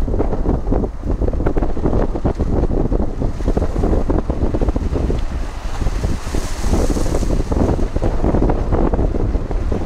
Wind blowing hard and waves crashing